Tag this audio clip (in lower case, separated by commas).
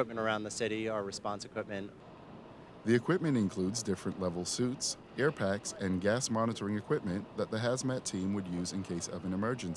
speech